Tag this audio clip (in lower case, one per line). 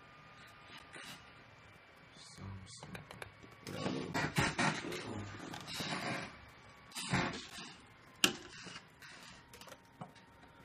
speech